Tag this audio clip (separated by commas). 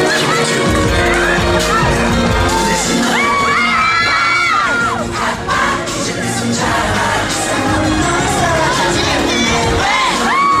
Exciting music, Music